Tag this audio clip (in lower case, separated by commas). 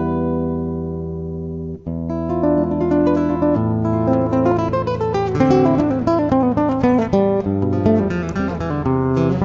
musical instrument, plucked string instrument, music of latin america, music, flamenco, guitar